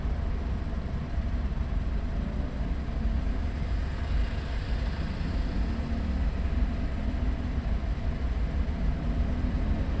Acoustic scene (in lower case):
car